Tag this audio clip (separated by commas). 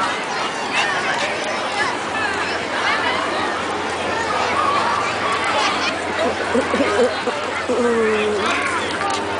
Animal, Domestic animals, Dog, Speech